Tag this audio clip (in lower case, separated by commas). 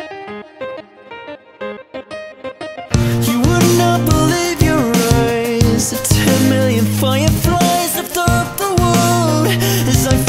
music